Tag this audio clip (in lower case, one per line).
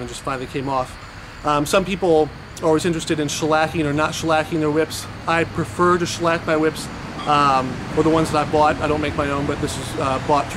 speech